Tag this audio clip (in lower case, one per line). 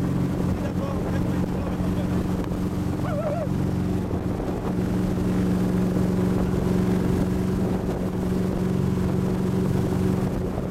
speech